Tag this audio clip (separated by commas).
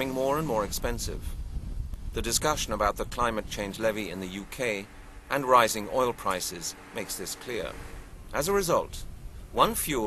Speech